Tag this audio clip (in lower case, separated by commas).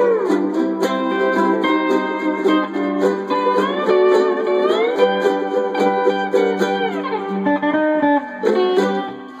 ukulele, music, speech